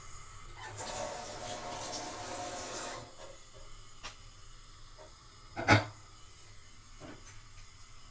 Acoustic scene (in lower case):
kitchen